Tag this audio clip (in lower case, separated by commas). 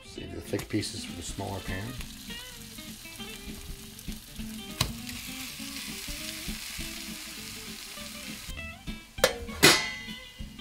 speech, inside a small room, music